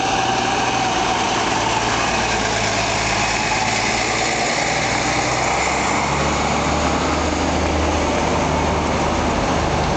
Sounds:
Vehicle, Heavy engine (low frequency), Truck

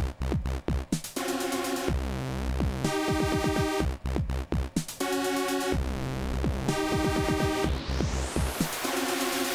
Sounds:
Music, Video game music

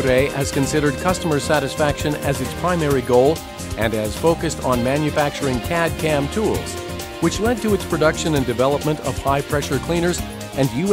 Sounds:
Speech, Music

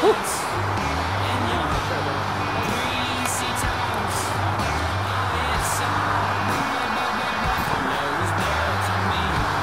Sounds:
Music

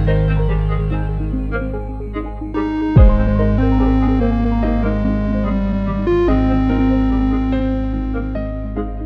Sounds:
Electric piano, Keyboard (musical), Piano

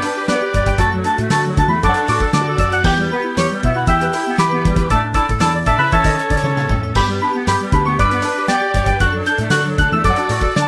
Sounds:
Music

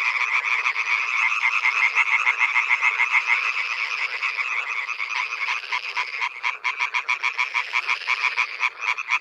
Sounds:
frog croaking

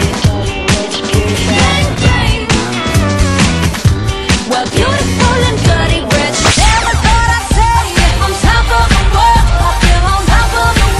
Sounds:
Funk, Music

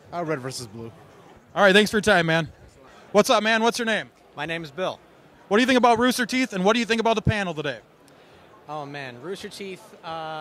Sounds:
Speech

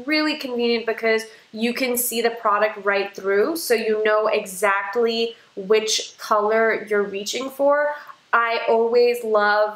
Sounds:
Speech

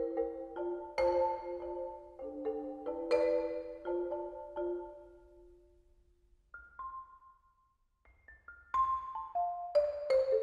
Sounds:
Glockenspiel, xylophone, Mallet percussion

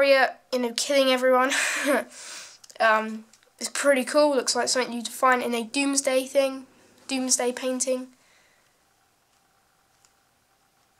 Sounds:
Speech

